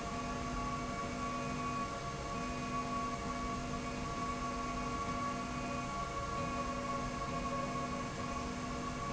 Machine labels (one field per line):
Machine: slide rail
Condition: normal